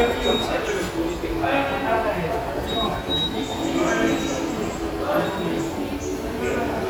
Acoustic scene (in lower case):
subway station